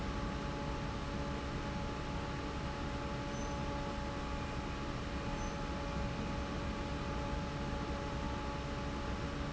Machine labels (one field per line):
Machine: fan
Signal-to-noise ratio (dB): -6 dB